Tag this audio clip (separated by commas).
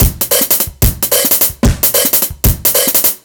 Musical instrument, Music, Percussion, Drum kit